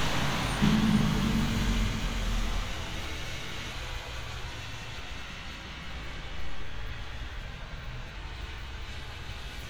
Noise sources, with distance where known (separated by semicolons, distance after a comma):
engine of unclear size